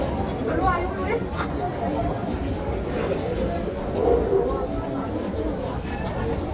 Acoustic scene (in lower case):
crowded indoor space